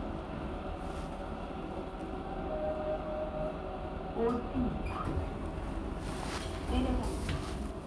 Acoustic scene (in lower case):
elevator